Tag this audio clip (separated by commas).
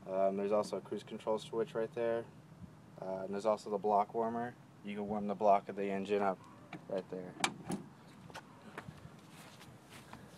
Speech